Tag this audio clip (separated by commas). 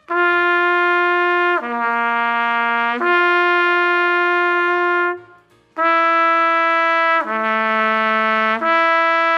playing trumpet